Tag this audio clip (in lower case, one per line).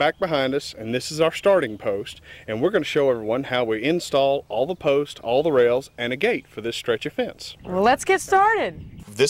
speech
animal